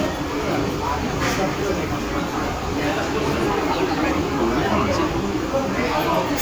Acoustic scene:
restaurant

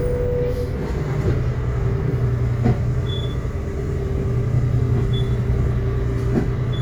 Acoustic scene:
bus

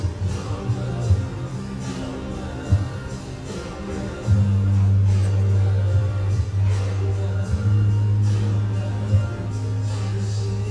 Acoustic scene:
cafe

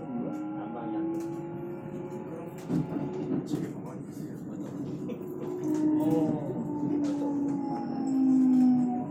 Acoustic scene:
subway train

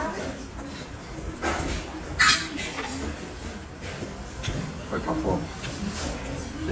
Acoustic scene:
restaurant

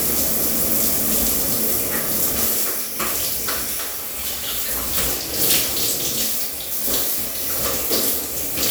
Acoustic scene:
restroom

